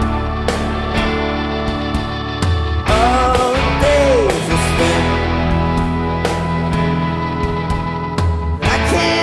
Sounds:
Music, Singing

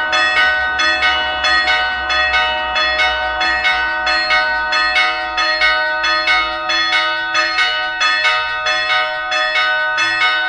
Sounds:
church bell ringing

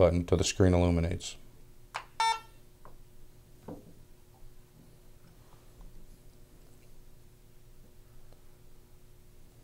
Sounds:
Silence, Speech

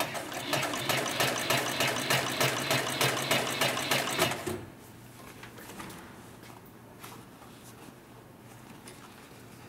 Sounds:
using sewing machines

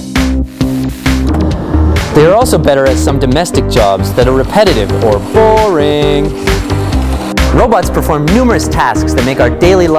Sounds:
Speech, Music

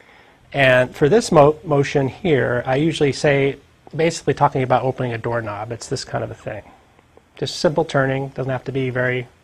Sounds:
Speech

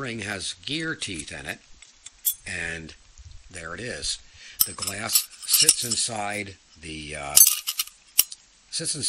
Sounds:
Speech

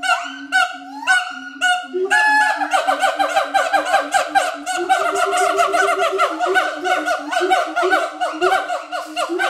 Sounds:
gibbon howling

